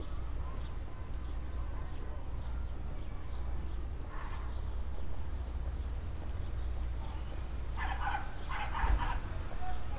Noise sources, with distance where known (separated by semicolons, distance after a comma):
dog barking or whining, near